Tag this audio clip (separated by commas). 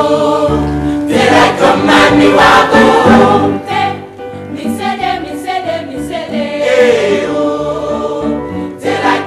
Music